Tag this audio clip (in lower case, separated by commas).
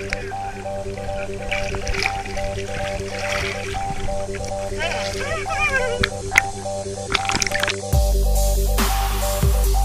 speech, music